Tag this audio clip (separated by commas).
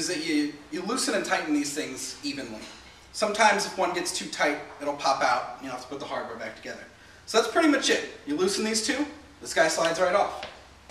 Speech